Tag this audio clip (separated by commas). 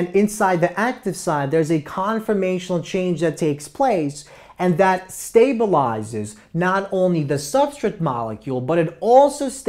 Speech